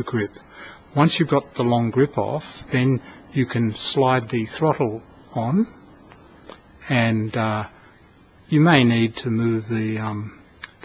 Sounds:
speech

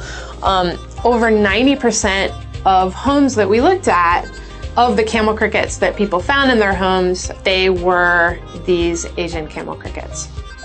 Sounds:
speech, music

